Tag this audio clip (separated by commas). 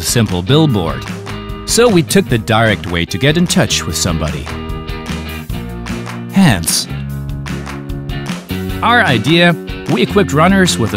Music, Speech